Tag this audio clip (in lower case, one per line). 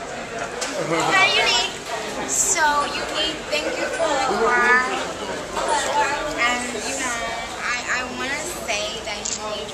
speech